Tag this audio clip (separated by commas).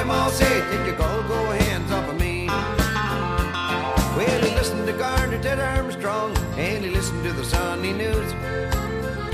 Music